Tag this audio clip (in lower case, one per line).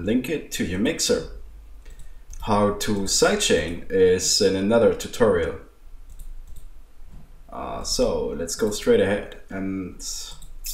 speech